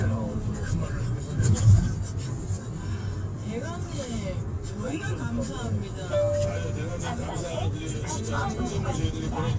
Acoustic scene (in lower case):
car